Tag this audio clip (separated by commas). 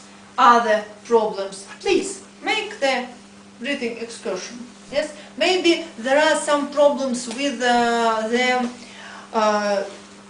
Speech